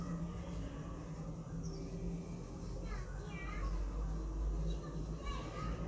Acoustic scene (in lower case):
residential area